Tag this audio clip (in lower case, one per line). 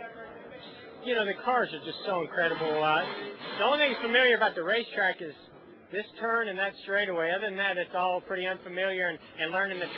speech